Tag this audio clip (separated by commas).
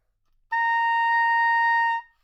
Music, Musical instrument, Wind instrument